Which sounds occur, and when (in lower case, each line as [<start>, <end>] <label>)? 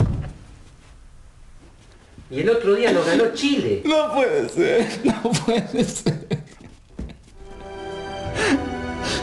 [0.00, 0.31] generic impact sounds
[0.00, 9.22] background noise
[0.61, 0.87] surface contact
[1.55, 2.01] generic impact sounds
[2.27, 3.57] man speaking
[2.28, 6.40] conversation
[2.79, 3.17] crying
[3.80, 4.87] man speaking
[3.83, 6.37] crying
[5.04, 5.72] man speaking
[6.46, 6.76] crying
[6.93, 7.31] generic impact sounds
[6.95, 7.20] crying
[7.48, 9.22] music
[8.31, 8.62] crying
[8.35, 8.54] breathing
[8.97, 9.19] crying
[8.97, 9.22] breathing